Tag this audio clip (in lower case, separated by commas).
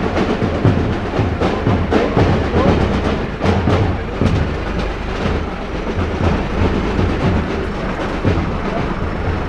speech, music, vehicle